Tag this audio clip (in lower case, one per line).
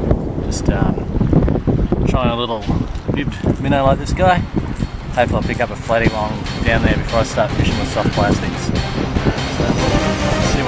speech
music